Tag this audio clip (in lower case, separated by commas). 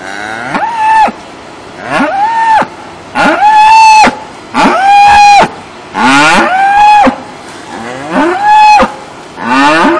cow lowing